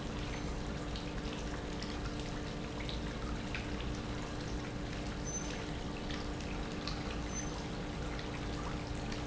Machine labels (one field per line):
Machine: pump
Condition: normal